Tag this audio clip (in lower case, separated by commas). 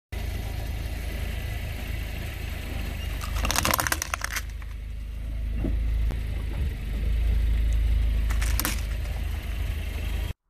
squishing water